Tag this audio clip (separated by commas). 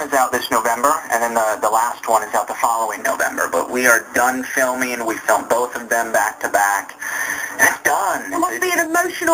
Speech